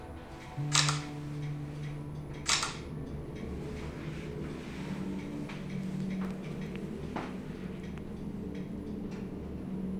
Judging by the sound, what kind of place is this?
elevator